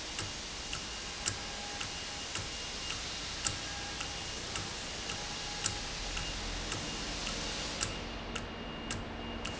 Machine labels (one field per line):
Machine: valve